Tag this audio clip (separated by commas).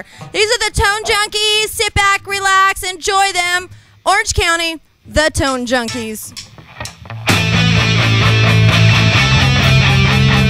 Speech, Heavy metal, Music